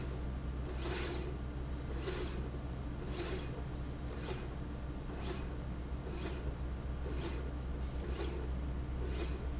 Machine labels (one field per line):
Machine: slide rail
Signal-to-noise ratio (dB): -6 dB